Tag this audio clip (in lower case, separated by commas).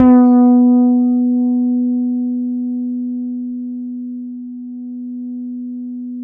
music, bass guitar, guitar, musical instrument, plucked string instrument